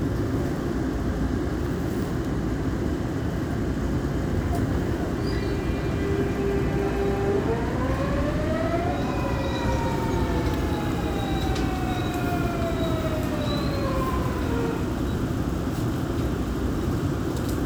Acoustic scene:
subway train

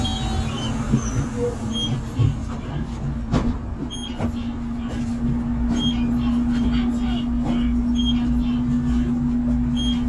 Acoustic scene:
bus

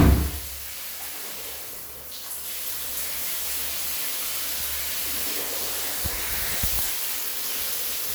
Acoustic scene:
restroom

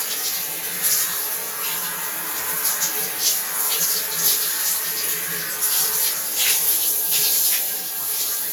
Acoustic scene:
restroom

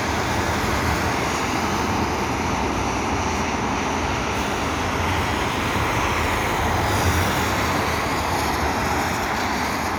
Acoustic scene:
street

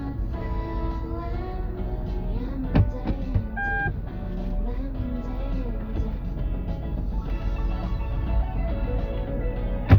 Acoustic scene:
car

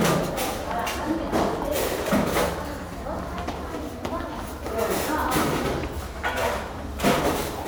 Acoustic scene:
restaurant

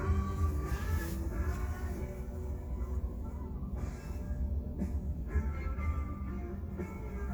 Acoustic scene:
car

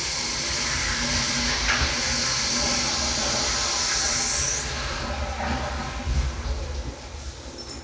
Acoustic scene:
restroom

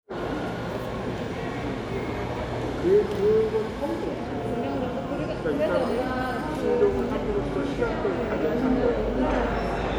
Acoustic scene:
crowded indoor space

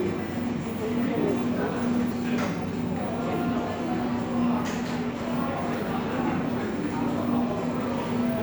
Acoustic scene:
cafe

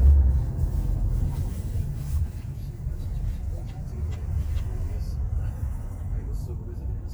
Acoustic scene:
car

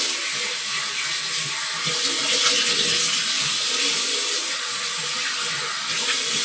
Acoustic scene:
restroom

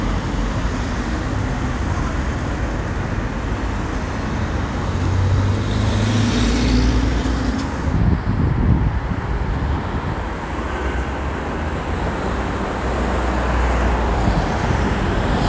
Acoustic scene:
street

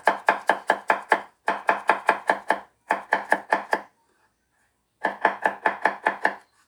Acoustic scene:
kitchen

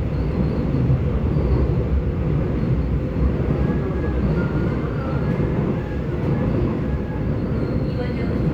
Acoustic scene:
subway train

